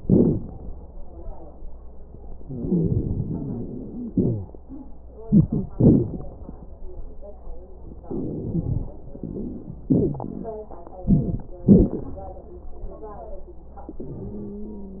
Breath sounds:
0.00-0.40 s: exhalation
0.00-0.40 s: crackles
2.38-4.13 s: inhalation
2.38-4.13 s: crackles
4.12-4.54 s: exhalation
4.12-4.54 s: wheeze
5.23-5.73 s: inhalation
5.23-5.73 s: wheeze
5.76-6.19 s: exhalation
5.76-6.19 s: wheeze
8.04-8.90 s: inhalation
8.04-8.90 s: crackles
9.89-10.59 s: exhalation
9.89-10.59 s: wheeze
11.06-11.58 s: inhalation
14.15-15.00 s: wheeze

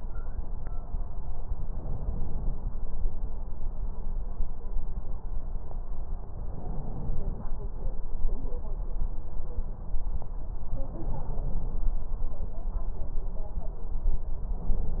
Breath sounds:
1.61-2.70 s: inhalation
6.37-7.46 s: inhalation
10.77-11.87 s: inhalation
14.54-15.00 s: inhalation

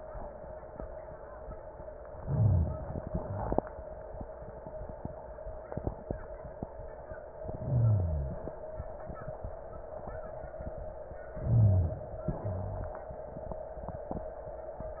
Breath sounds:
2.14-3.04 s: inhalation
2.22-2.83 s: rhonchi
3.04-3.66 s: exhalation
7.50-8.41 s: inhalation
7.59-8.36 s: rhonchi
11.35-12.01 s: rhonchi
11.39-12.25 s: inhalation
12.25-13.01 s: exhalation
12.33-12.99 s: rhonchi

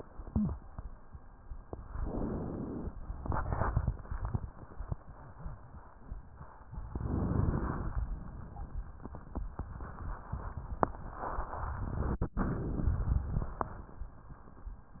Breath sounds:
1.75-2.92 s: inhalation
6.89-8.06 s: inhalation

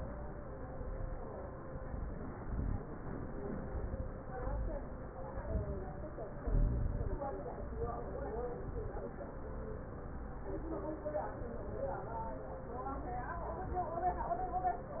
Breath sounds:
1.56-2.31 s: inhalation
2.31-2.91 s: exhalation
3.55-4.14 s: inhalation
4.14-4.88 s: exhalation
5.36-6.10 s: inhalation
6.44-7.18 s: exhalation
7.70-8.44 s: inhalation
8.44-9.08 s: exhalation

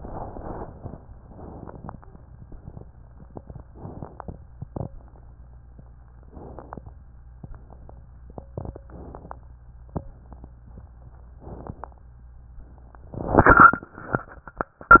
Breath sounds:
1.22-2.20 s: inhalation
1.22-2.20 s: crackles
3.67-4.44 s: inhalation
3.67-4.44 s: crackles
6.21-6.97 s: inhalation
6.21-6.97 s: crackles
8.87-9.55 s: inhalation
8.87-9.55 s: crackles
11.42-12.05 s: inhalation
11.42-12.05 s: crackles

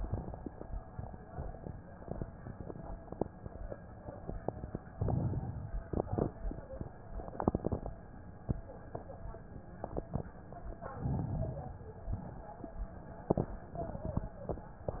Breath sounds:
4.90-5.88 s: inhalation
4.90-5.88 s: crackles
10.78-11.77 s: inhalation
10.78-11.77 s: crackles

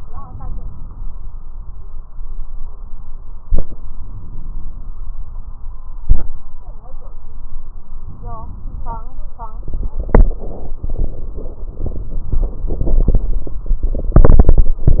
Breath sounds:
0.00-1.33 s: inhalation
3.71-4.97 s: inhalation
8.04-9.07 s: inhalation

